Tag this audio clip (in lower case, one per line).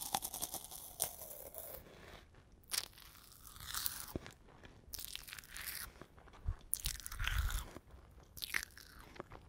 crunch